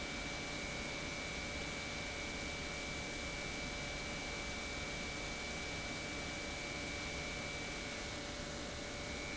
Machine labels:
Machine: pump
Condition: normal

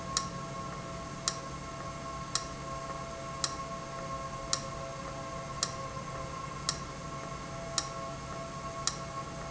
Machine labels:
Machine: valve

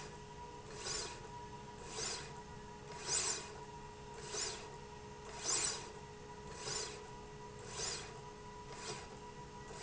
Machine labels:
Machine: slide rail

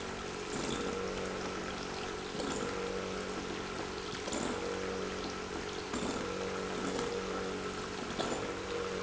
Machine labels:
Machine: pump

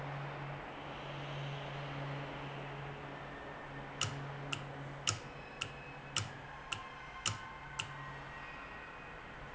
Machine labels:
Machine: valve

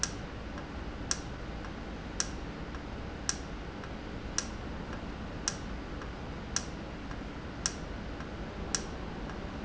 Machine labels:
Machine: valve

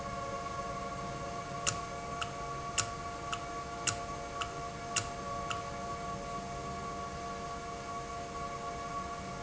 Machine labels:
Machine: valve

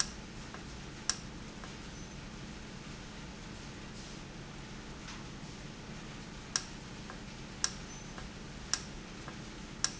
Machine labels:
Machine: valve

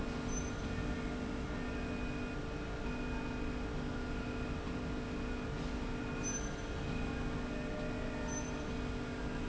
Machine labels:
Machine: slide rail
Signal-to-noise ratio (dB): -6 dB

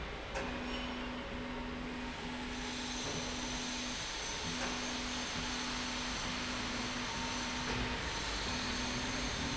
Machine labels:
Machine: slide rail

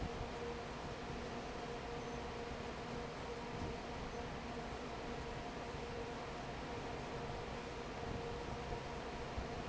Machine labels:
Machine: fan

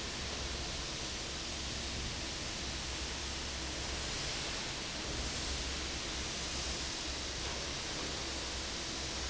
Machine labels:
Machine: fan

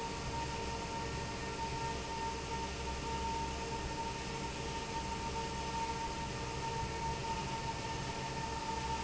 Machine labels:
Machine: fan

